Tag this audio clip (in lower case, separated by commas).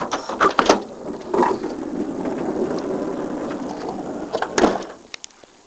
door, home sounds, sliding door